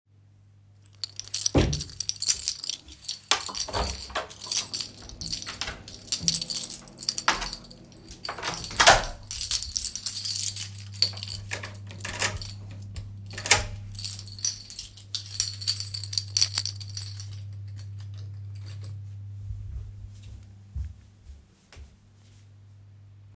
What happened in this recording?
I get up from my chair with my keys in hand, take a few steps; open the bedroom door, close the bathroom door, lock and unlock the entrance door, hang up the keys and go back to my bedroom.